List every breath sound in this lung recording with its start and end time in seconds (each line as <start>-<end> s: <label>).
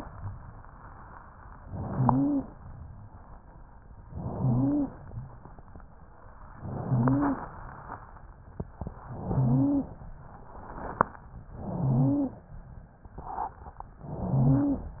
1.63-2.56 s: inhalation
1.90-2.47 s: wheeze
4.08-5.01 s: inhalation
4.34-4.92 s: wheeze
6.60-7.53 s: inhalation
6.81-7.38 s: wheeze
9.03-9.96 s: inhalation
9.32-9.89 s: wheeze
11.55-12.49 s: inhalation
11.61-12.31 s: wheeze
14.06-14.99 s: inhalation
14.19-14.90 s: wheeze